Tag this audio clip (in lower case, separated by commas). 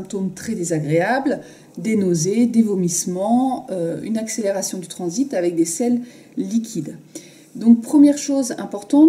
speech